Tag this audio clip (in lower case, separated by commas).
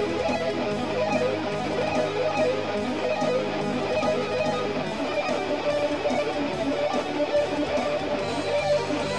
music, electric guitar, musical instrument, guitar